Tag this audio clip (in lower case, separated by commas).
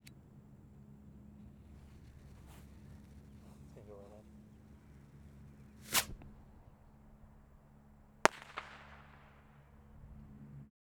fireworks, explosion